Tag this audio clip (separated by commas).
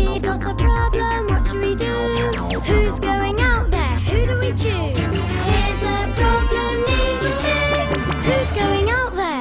Music